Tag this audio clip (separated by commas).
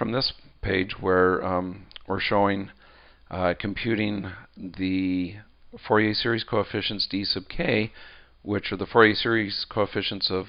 Speech